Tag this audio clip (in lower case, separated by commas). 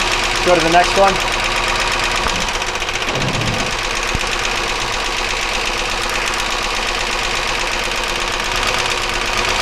car engine knocking